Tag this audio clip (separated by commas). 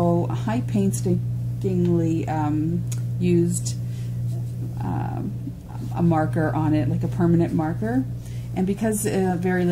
Speech, inside a small room